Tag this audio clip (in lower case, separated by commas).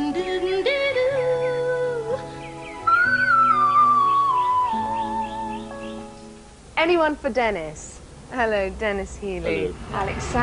speech, music